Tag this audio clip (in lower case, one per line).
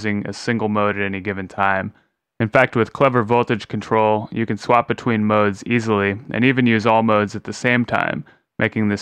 speech